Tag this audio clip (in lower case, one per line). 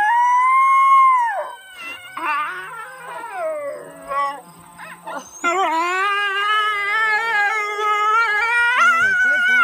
animal
pets
canids
speech
dog
moan
wild animals
howl